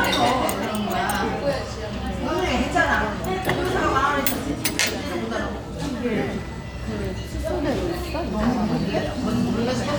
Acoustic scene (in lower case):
restaurant